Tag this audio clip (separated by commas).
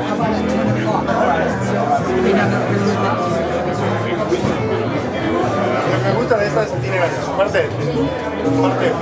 Musical instrument, Music, Speech